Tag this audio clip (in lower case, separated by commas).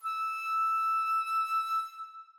woodwind instrument, music, musical instrument